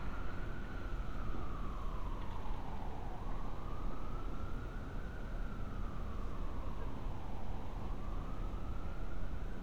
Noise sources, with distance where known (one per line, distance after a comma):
siren, far